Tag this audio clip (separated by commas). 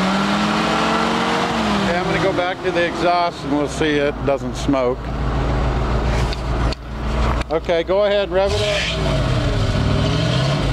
Vehicle, Speech, Truck, Engine